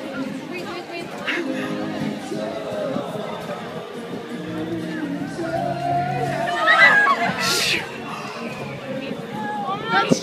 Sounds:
Speech, Sound effect, Music

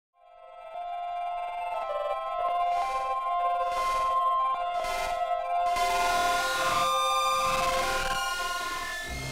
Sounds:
Music

